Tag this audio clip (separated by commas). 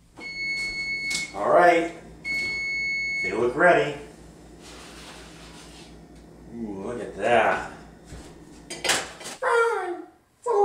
Speech